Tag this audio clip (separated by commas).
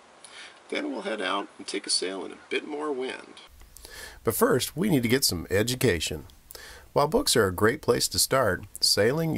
Speech